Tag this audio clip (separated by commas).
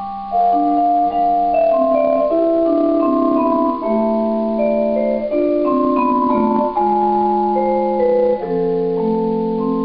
Musical instrument, xylophone, Vibraphone, Percussion, Music, Marimba